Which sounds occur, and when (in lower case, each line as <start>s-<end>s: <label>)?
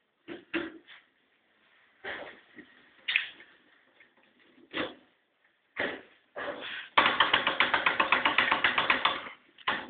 0.0s-9.8s: background noise
6.3s-6.9s: generic impact sounds
9.6s-9.8s: tap